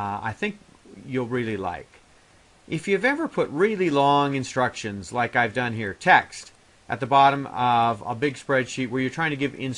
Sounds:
Speech

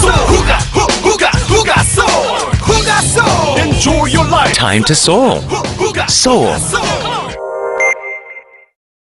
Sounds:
Speech, Music

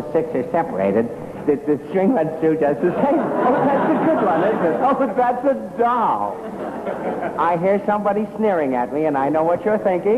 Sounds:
Male speech

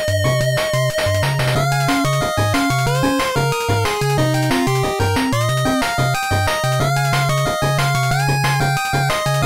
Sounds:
Background music, Music, Video game music

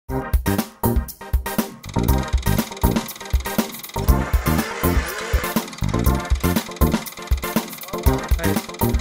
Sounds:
Speech, Vehicle, Music, airscrew

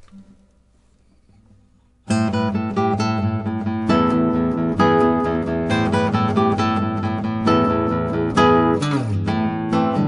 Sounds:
Music, Strum, Plucked string instrument, Musical instrument, Acoustic guitar, Guitar

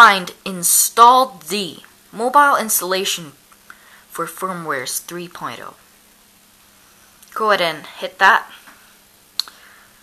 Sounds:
Speech

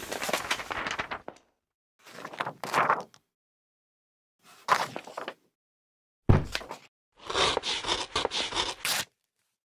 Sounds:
Clatter

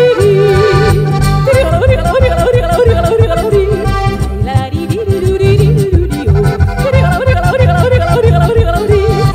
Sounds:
yodelling

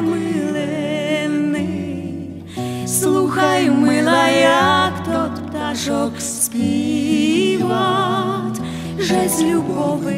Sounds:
Music

